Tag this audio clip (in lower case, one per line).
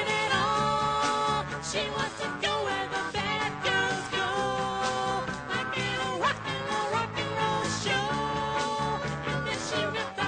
music
rock and roll